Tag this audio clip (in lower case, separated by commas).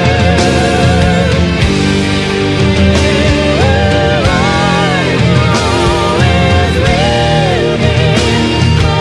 music